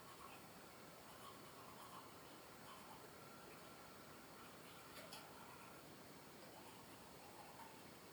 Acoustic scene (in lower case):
restroom